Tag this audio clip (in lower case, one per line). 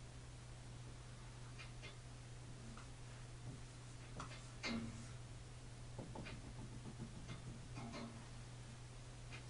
inside a small room
speech